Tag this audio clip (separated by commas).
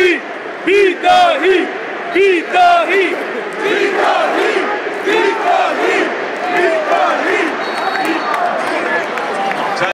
Speech